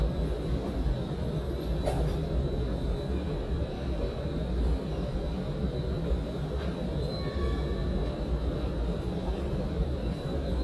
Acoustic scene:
subway station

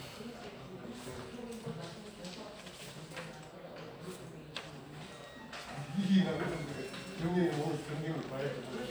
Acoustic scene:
crowded indoor space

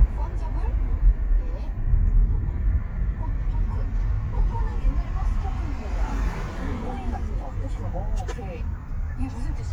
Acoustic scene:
car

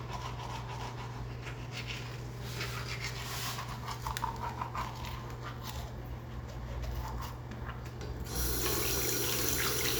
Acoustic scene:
restroom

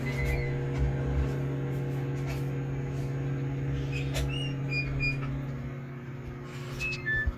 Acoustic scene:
kitchen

